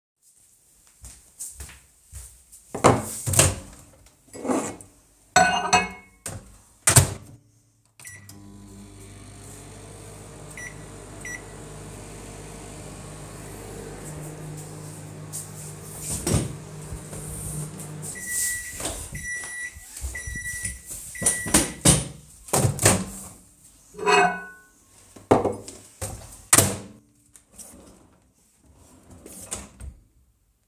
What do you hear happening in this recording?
They walk over to the microwave and set down the mug, then open the microwave door. They pick up the mug, place it inside, start the microwave, and press a few more buttons. Meanwhile, they move the chair aside. The microwave stops and beeps. They open the door, move the chair aside again, take out the mug, and close the microwave. Then they quickly open the kitchen drawer, take something out (inaudible), and close it.